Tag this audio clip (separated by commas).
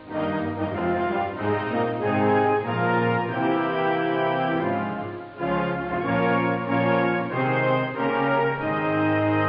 Music